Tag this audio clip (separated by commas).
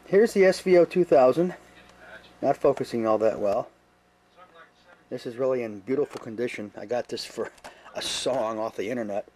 Speech